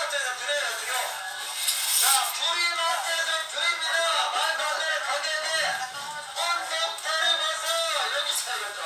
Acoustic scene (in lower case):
crowded indoor space